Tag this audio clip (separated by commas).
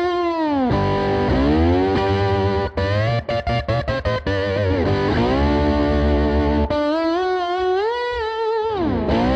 Strum, Musical instrument, Music, Guitar, Plucked string instrument